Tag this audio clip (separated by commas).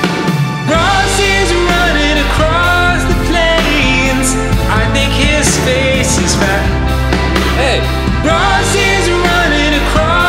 Music